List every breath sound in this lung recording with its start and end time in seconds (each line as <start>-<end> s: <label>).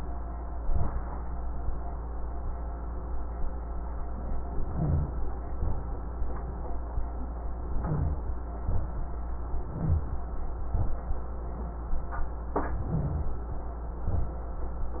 4.67-5.16 s: inhalation
4.67-5.16 s: rhonchi
5.58-6.07 s: exhalation
7.74-8.24 s: inhalation
7.74-8.24 s: rhonchi
8.63-9.13 s: exhalation
9.66-10.15 s: inhalation
9.66-10.15 s: rhonchi
10.66-11.03 s: exhalation
12.52-13.38 s: inhalation